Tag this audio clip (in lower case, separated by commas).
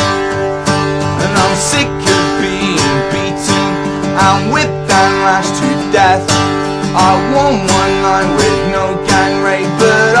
music